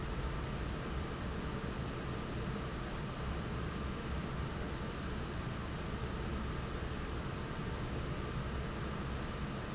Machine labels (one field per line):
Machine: fan